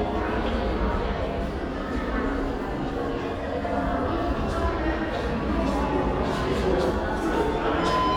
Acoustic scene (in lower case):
crowded indoor space